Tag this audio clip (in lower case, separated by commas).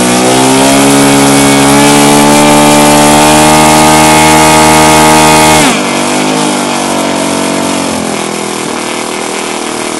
revving, engine